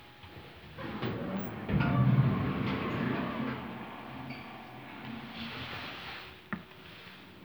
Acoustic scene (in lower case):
elevator